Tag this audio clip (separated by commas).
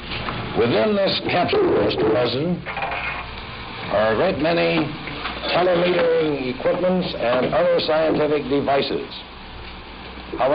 Speech